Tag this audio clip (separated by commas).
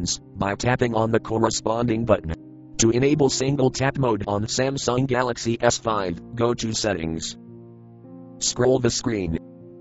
Speech synthesizer, inside a small room, Speech, Music